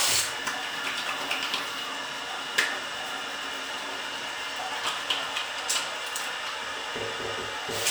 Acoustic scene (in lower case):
restroom